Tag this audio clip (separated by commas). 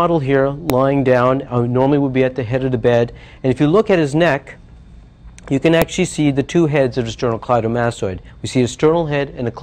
Speech